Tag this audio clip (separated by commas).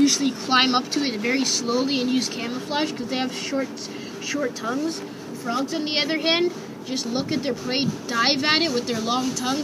Speech